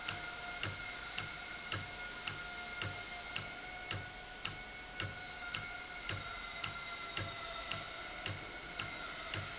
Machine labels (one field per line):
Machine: valve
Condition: normal